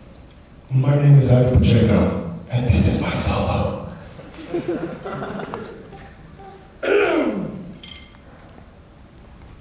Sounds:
speech

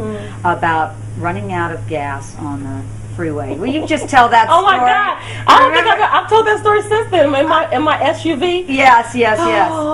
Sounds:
speech

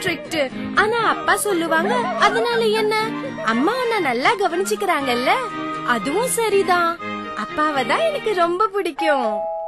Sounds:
kid speaking
music
speech

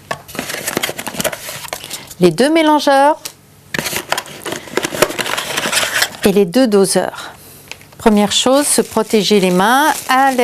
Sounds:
speech

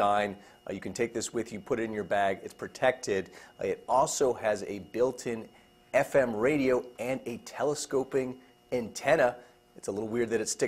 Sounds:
speech

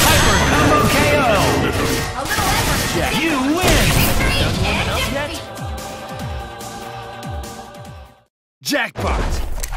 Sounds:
music
speech

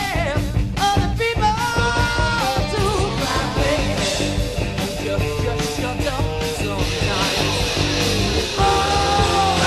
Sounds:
ska
guitar
music
musical instrument

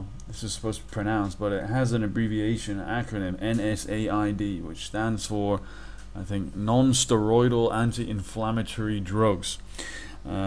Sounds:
speech

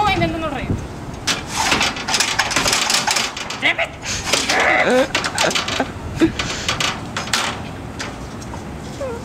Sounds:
speech

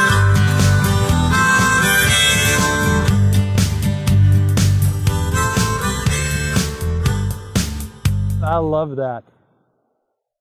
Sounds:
music

